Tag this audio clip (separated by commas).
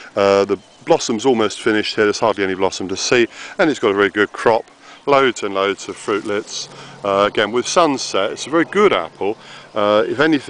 outside, urban or man-made, Speech